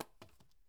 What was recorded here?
object falling on carpet